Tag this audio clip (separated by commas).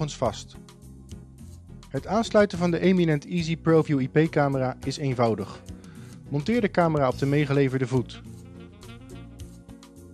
Speech